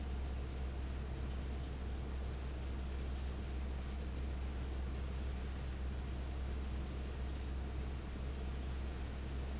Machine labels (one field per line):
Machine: fan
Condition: abnormal